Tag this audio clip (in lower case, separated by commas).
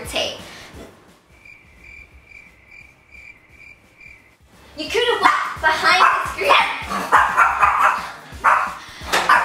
dog, bow-wow, bark